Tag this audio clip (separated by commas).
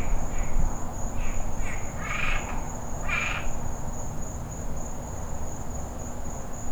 Frog, Wild animals, Animal